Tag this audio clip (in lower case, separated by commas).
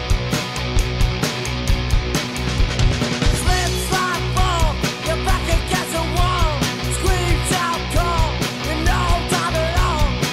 music, rhythm and blues, blues, middle eastern music